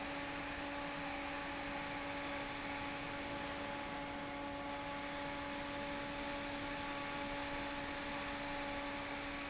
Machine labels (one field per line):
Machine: fan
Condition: normal